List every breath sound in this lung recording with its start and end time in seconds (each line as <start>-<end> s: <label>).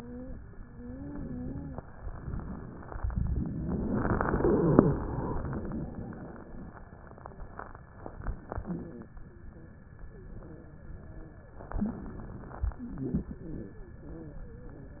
0.00-0.30 s: wheeze
0.54-1.84 s: wheeze
8.66-9.10 s: wheeze
9.28-9.72 s: wheeze
10.06-11.52 s: wheeze
12.82-13.93 s: wheeze
14.00-15.00 s: wheeze